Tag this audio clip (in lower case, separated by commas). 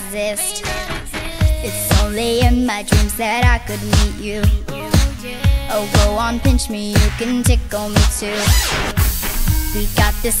pop music, music